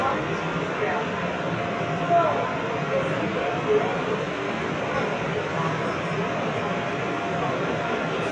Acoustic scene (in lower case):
subway train